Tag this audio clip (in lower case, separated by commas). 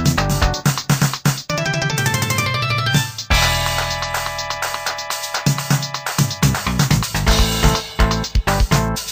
sound effect, roll, music